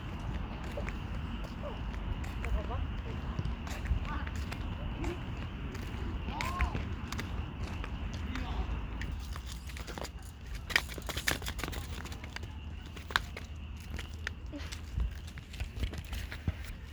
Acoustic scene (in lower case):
park